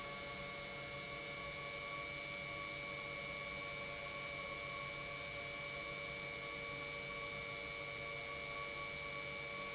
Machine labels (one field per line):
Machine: pump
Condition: normal